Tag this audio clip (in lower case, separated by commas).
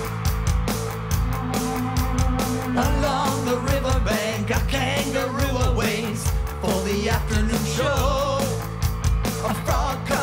music